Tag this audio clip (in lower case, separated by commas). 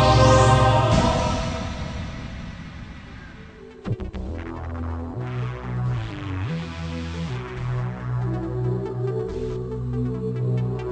electronic music, music, techno